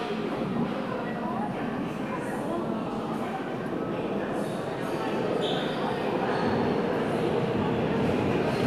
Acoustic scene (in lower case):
subway station